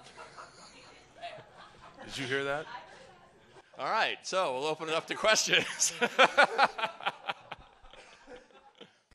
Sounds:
speech

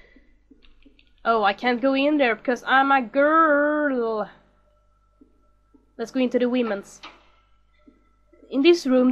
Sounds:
speech

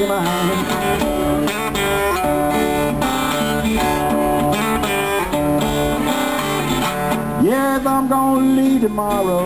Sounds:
music

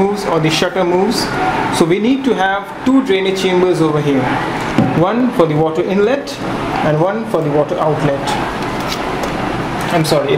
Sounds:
speech

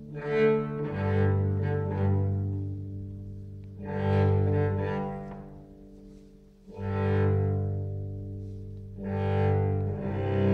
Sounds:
cello
musical instrument
music

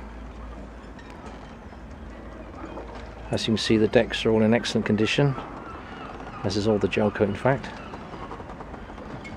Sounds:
speech

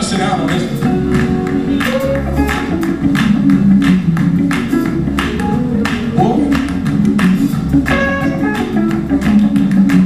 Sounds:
speech
music

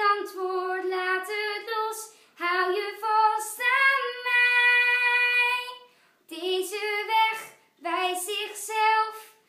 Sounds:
singing

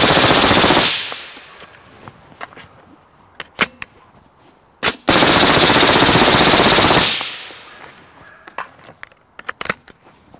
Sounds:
machine gun shooting

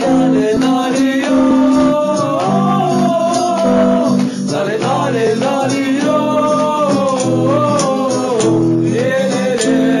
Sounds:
music

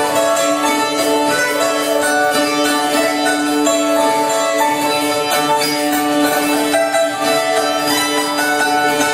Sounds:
zither
music

